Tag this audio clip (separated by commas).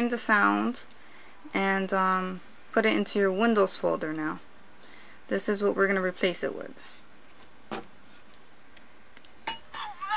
Speech